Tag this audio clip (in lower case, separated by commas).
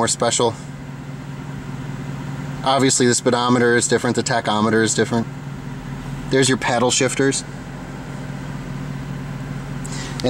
speech, car, vehicle